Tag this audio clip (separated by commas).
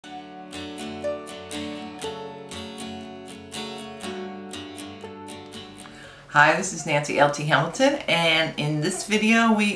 Strum